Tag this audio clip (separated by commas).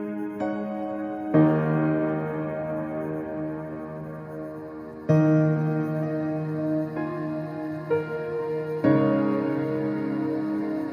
Music, New-age music